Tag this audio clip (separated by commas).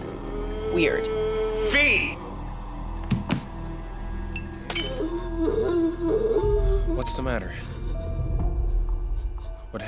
Speech, Music